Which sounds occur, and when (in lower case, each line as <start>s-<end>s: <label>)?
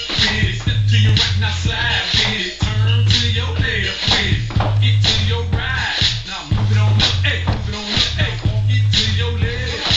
0.0s-0.1s: tap
0.0s-4.4s: male singing
0.0s-9.9s: music
0.5s-0.7s: tap
1.4s-2.2s: shuffle
2.1s-2.3s: tap
3.9s-4.3s: tap
4.5s-4.7s: tap
4.7s-9.9s: male singing
4.9s-5.1s: tap
6.4s-7.1s: shuffle
6.4s-6.6s: tap
6.8s-7.0s: tap
7.4s-7.6s: tap
7.6s-8.1s: shuffle
8.3s-8.5s: generic impact sounds